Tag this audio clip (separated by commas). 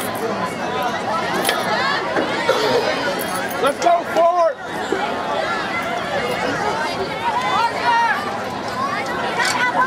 outside, urban or man-made, Speech